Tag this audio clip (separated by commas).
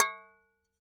Domestic sounds, Tap, Glass, dishes, pots and pans